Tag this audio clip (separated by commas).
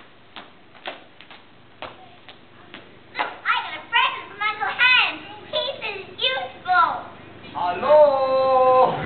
Speech